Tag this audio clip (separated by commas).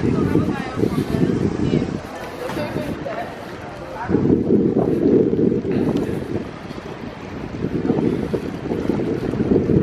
Vehicle, Speech, Bicycle